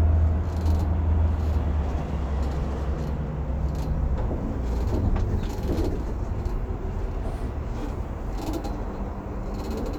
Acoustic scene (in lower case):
bus